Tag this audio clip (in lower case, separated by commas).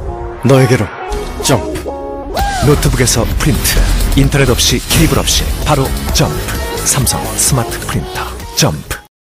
music, speech